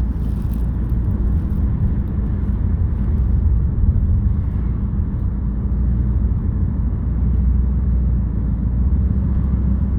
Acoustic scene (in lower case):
car